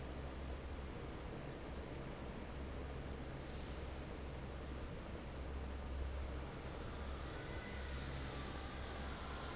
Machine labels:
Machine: fan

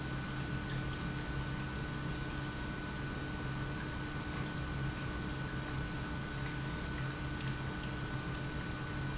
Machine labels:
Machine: pump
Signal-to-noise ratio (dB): -6 dB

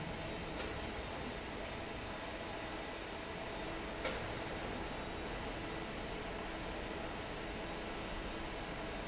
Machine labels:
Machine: fan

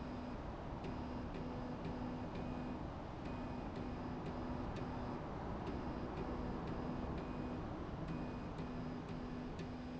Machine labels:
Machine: slide rail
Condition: normal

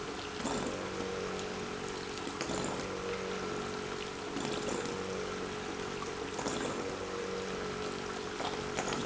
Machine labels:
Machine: pump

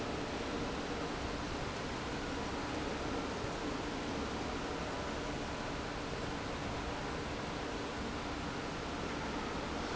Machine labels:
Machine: fan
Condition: normal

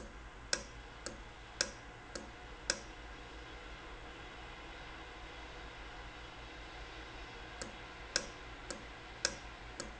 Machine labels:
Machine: valve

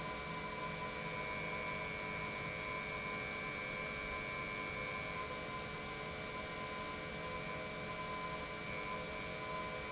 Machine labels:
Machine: pump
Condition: normal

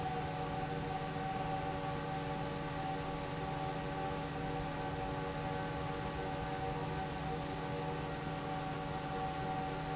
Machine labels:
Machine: fan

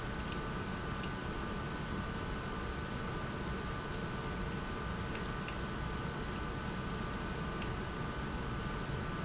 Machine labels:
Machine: pump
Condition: abnormal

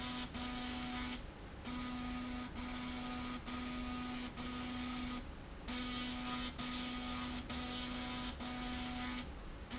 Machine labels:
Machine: slide rail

